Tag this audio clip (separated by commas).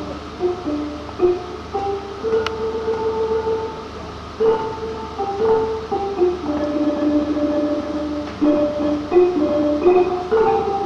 Music